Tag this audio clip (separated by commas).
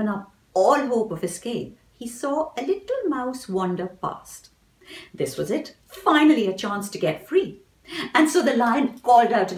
Speech